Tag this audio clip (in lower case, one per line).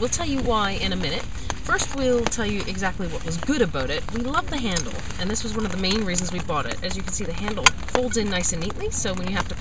speech